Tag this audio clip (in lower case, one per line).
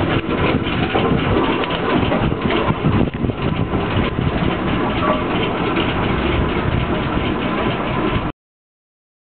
vehicle